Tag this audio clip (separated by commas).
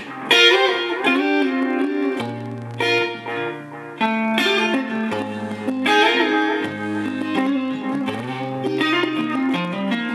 Guitar, Electric guitar, Music, Musical instrument, Plucked string instrument